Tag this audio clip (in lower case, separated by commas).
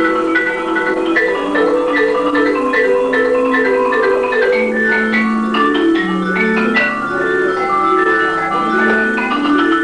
xylophone, music